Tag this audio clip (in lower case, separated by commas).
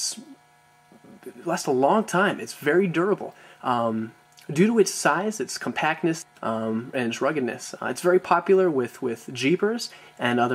speech